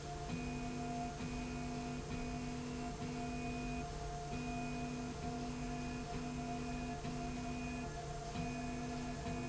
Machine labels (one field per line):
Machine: slide rail